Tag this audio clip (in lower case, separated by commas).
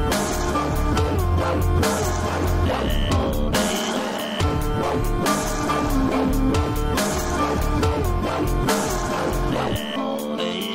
dubstep, music, electronic music